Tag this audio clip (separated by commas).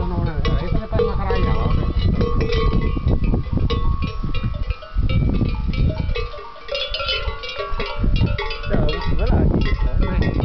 bovinae cowbell